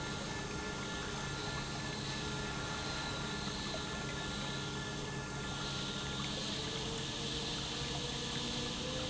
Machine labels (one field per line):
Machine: pump